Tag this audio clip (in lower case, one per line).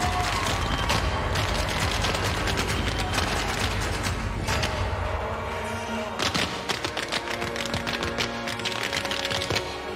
tap dancing